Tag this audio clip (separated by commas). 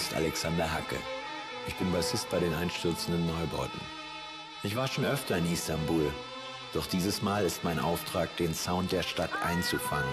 Speech, Music